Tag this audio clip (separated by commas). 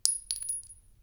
Glass, clink